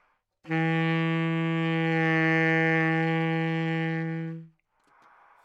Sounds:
Wind instrument, Music, Musical instrument

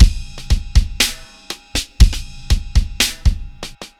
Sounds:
Drum kit, Percussion, Music, Musical instrument

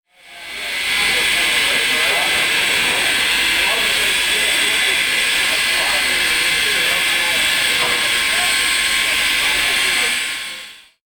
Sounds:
Train, Rail transport, Vehicle

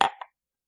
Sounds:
dishes, pots and pans, Domestic sounds

